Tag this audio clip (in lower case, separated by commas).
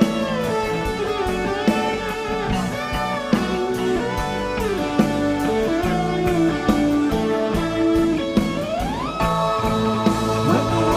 music, guitar, musical instrument, strum, electric guitar, acoustic guitar, plucked string instrument